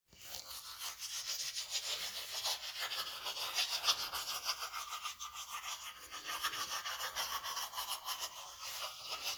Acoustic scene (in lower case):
restroom